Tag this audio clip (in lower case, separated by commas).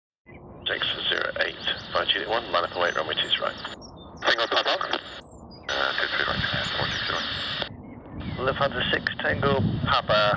radio